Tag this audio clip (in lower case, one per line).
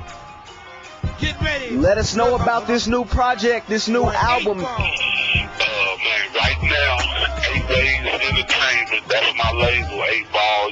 radio
music
speech